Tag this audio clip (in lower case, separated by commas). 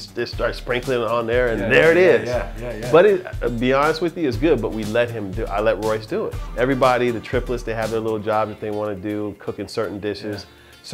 music, speech